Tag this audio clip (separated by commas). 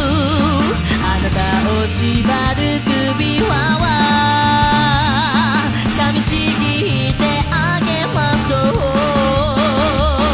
Music